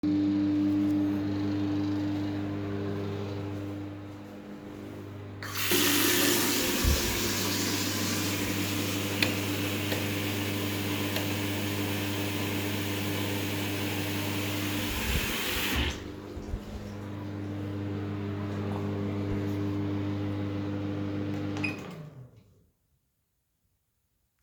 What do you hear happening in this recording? The microwave is already on. Then I opened the water and while the water was running I switched the light three times. After that I closed the water and turned off the microwave.